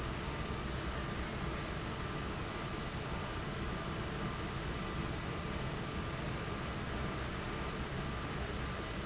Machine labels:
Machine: fan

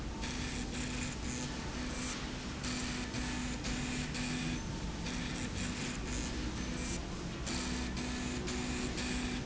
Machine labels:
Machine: slide rail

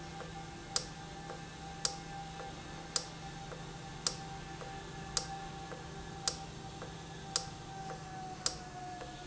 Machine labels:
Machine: valve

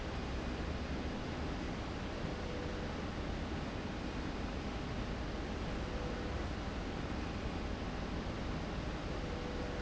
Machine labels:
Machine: slide rail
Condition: normal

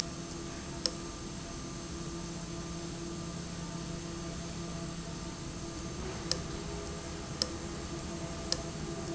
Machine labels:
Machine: valve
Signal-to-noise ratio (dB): -6 dB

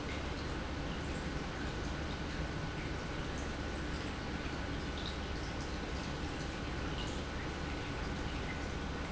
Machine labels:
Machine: pump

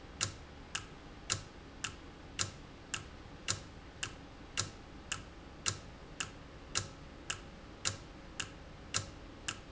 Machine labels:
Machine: valve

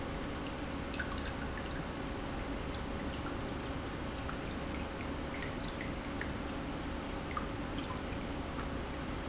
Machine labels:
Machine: pump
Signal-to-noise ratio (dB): -6 dB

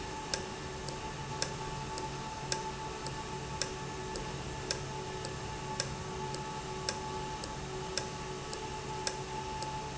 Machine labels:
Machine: valve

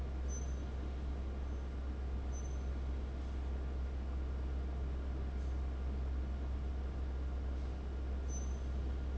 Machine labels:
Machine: fan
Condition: abnormal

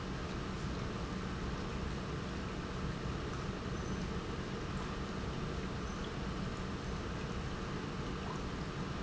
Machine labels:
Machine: pump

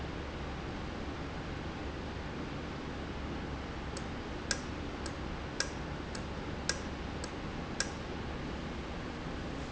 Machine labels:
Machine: valve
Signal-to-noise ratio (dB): -6 dB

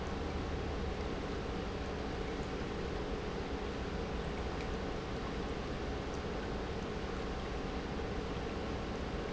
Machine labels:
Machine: pump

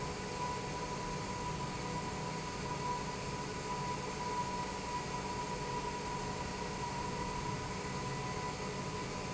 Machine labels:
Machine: pump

